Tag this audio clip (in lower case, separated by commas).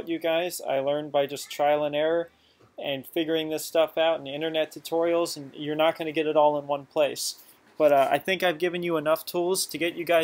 speech